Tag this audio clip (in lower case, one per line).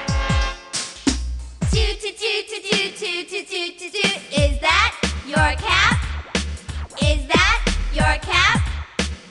music